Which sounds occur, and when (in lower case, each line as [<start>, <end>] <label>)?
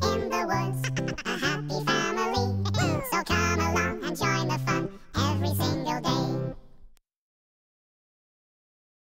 [0.00, 6.97] music
[0.01, 0.76] synthetic singing
[1.19, 2.48] synthetic singing
[2.52, 3.34] laughter
[3.26, 4.91] synthetic singing
[5.18, 6.57] synthetic singing